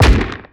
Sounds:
explosion, gunshot

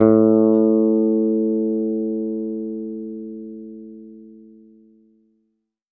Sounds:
bass guitar, music, plucked string instrument, guitar, musical instrument

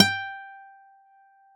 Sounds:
musical instrument, music, guitar, acoustic guitar, plucked string instrument

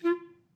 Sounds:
musical instrument, music, wind instrument

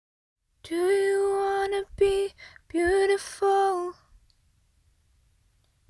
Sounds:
female singing, human voice, singing

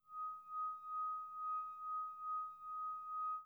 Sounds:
glass, screech

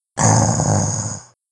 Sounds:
animal

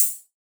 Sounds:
music, cymbal, musical instrument, percussion, hi-hat

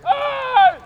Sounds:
screaming, human voice

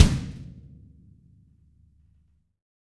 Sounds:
music, bass drum, drum, musical instrument, percussion

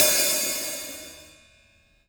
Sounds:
music, musical instrument, cymbal, percussion, hi-hat

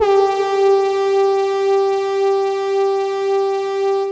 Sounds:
brass instrument, musical instrument, music

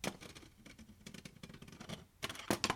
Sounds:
thud

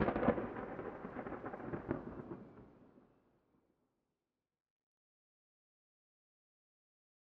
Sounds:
thunderstorm, thunder

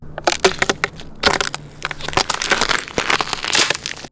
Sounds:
walk

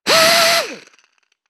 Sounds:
tools

